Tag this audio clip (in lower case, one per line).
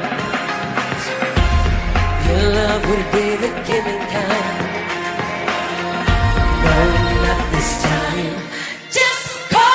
music
pop music
singing